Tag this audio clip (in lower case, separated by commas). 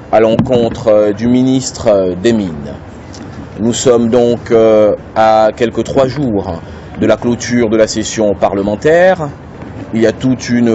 speech